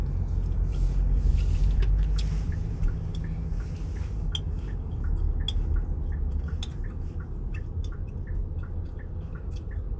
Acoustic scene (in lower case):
car